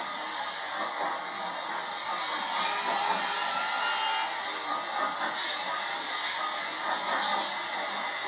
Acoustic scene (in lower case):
subway train